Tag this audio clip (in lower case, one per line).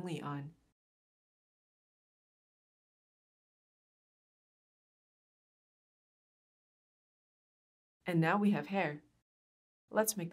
speech
inside a small room